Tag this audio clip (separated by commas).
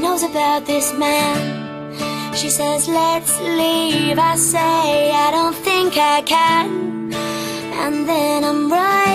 Music